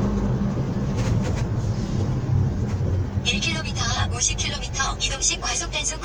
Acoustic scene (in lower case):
car